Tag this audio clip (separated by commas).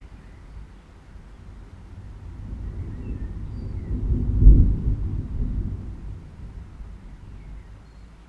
Water, Thunder, Rain, Thunderstorm